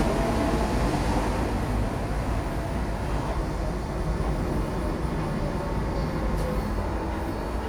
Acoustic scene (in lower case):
subway station